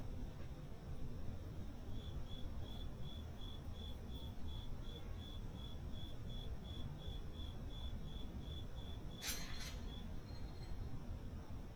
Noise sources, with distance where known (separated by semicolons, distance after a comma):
background noise